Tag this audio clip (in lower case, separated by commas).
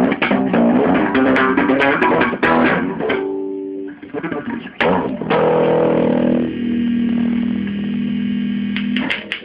bass guitar, music